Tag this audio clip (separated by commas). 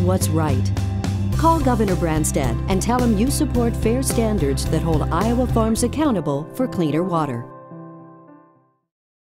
Music, Speech